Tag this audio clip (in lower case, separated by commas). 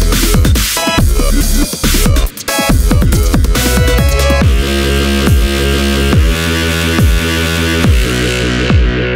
dubstep, music